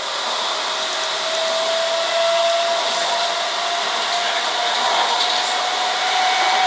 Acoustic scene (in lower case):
subway train